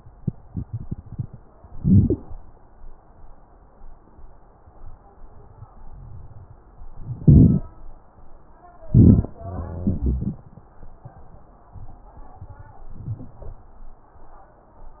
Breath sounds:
Inhalation: 1.72-2.22 s, 7.19-7.69 s, 8.90-9.40 s
Exhalation: 9.45-10.45 s
Wheeze: 9.45-10.45 s
Crackles: 7.19-7.69 s, 8.90-9.40 s

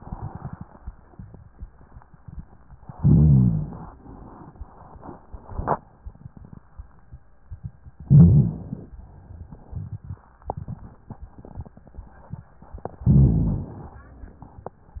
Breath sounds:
Inhalation: 2.96-3.91 s, 8.05-8.93 s, 13.03-13.90 s
Rhonchi: 2.96-3.91 s, 8.05-8.93 s, 13.03-13.90 s

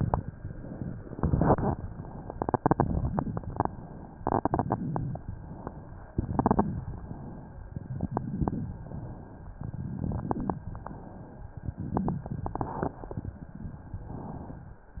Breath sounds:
Inhalation: 0.34-1.13 s, 1.74-2.35 s, 3.54-4.18 s, 5.30-6.11 s, 6.83-7.80 s, 8.82-9.57 s, 11.78-13.33 s
Exhalation: 0.00-0.34 s, 1.14-1.74 s, 2.35-3.54 s, 4.18-5.30 s, 6.11-6.83 s, 7.80-8.82 s, 9.57-10.60 s
Crackles: 0.00-0.36 s, 1.14-1.74 s, 2.35-3.54 s, 4.18-5.30 s, 6.11-6.83 s, 7.80-8.82 s, 9.57-10.60 s, 11.78-13.33 s

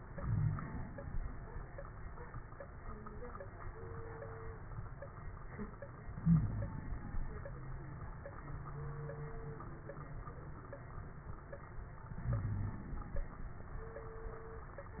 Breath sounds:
Inhalation: 0.00-1.18 s, 6.03-7.55 s, 12.07-13.60 s
Wheeze: 0.14-0.59 s, 6.20-6.78 s, 12.26-12.79 s

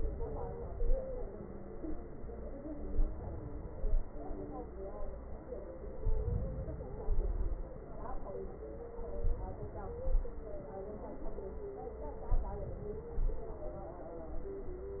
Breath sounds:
Inhalation: 2.64-3.40 s, 6.00-7.05 s, 8.99-10.03 s, 12.05-12.84 s
Exhalation: 3.48-4.24 s, 7.07-7.79 s, 10.05-10.71 s, 12.88-13.68 s

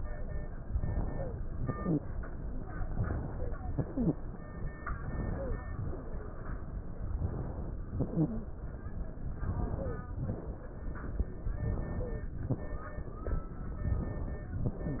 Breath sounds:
Inhalation: 0.65-1.37 s, 2.81-3.53 s, 4.92-5.66 s, 7.08-7.82 s, 9.32-10.08 s, 11.54-12.24 s, 13.83-14.59 s
Exhalation: 1.52-2.24 s, 3.64-4.37 s, 5.71-6.42 s, 7.86-8.43 s, 10.21-10.91 s, 12.43-13.23 s
Wheeze: 1.52-2.24 s, 3.64-4.21 s, 5.71-6.42 s, 7.86-8.43 s, 11.54-12.24 s

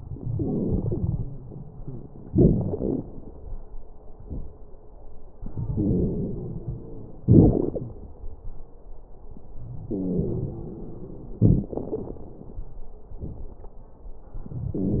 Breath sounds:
Inhalation: 0.00-1.30 s, 5.44-7.20 s, 9.88-11.37 s, 14.39-15.00 s
Exhalation: 2.24-3.04 s, 7.24-7.93 s, 11.42-12.27 s
Wheeze: 5.70-7.20 s, 9.88-11.37 s, 14.74-15.00 s
Crackles: 0.00-1.30 s, 2.24-3.04 s, 7.24-7.93 s, 11.42-12.27 s

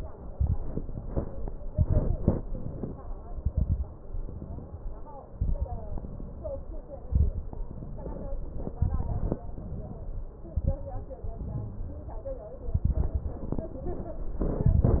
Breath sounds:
Inhalation: 0.26-0.72 s, 1.69-2.34 s, 3.23-3.93 s, 5.34-5.83 s, 7.09-7.62 s, 8.80-9.44 s, 10.47-10.93 s, 12.73-13.55 s, 14.40-15.00 s
Exhalation: 0.80-1.61 s, 2.43-3.08 s, 4.03-4.98 s, 5.87-6.93 s, 7.62-8.78 s, 9.50-10.34 s, 11.23-12.52 s, 13.60-14.39 s
Crackles: 0.26-0.72 s, 1.69-2.34 s, 3.23-3.93 s, 5.34-5.83 s, 7.09-7.62 s, 8.80-9.44 s, 10.47-10.93 s, 12.73-13.55 s, 14.40-15.00 s

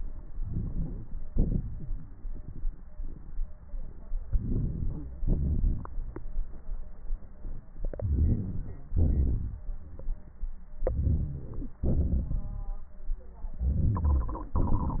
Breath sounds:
Inhalation: 0.44-1.03 s, 4.27-5.05 s, 7.99-8.94 s, 10.80-11.78 s, 13.55-14.57 s
Exhalation: 1.31-2.07 s, 5.20-5.88 s, 8.99-9.68 s, 11.88-12.77 s

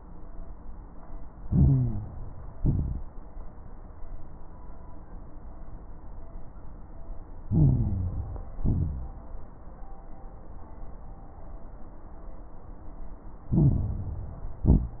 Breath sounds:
Inhalation: 1.41-2.14 s, 7.45-8.51 s, 13.51-14.63 s
Exhalation: 2.54-3.08 s, 8.59-9.21 s, 14.67-15.00 s
Crackles: 1.41-2.14 s, 2.54-3.08 s, 7.45-8.51 s, 8.59-9.21 s, 13.51-14.63 s, 14.67-15.00 s

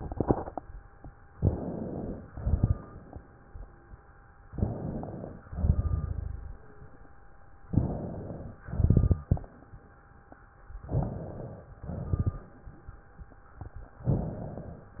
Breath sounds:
Inhalation: 1.31-2.22 s, 4.52-5.43 s, 7.70-8.62 s, 10.83-11.75 s, 14.08-14.99 s
Exhalation: 2.30-3.13 s, 5.52-6.21 s, 8.67-9.36 s, 11.82-12.51 s
Crackles: 2.30-3.13 s, 5.52-6.58 s, 8.67-9.36 s, 11.82-12.51 s

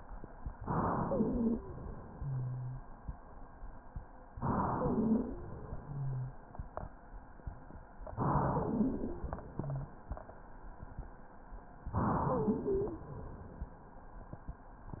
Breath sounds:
Inhalation: 0.60-1.71 s, 4.34-5.60 s, 8.07-9.26 s, 11.91-13.03 s
Exhalation: 1.71-3.09 s, 5.64-6.61 s, 9.26-10.18 s
Wheeze: 0.96-1.73 s, 4.72-5.60 s, 8.33-9.22 s, 12.17-13.05 s

